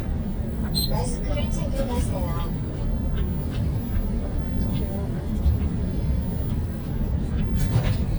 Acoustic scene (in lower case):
bus